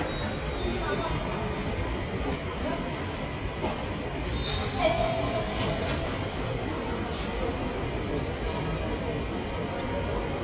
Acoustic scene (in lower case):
subway station